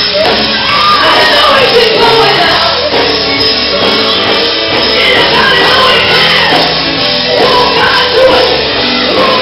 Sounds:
music
female singing

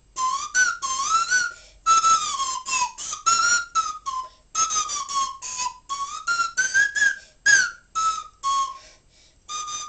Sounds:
whistle

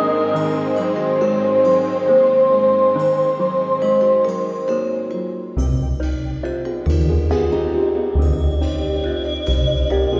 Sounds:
mallet percussion
marimba
glockenspiel

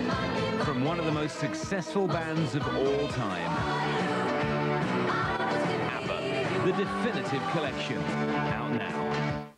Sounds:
music
speech

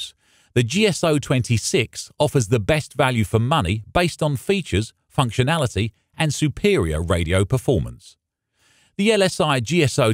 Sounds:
speech

